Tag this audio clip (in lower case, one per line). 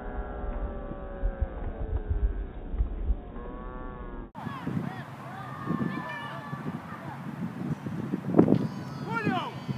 speech